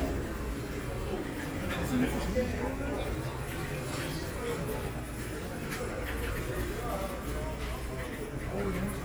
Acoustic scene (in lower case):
crowded indoor space